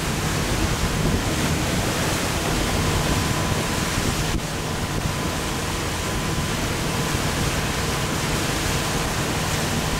Water is rapidly flowing and streaming continuously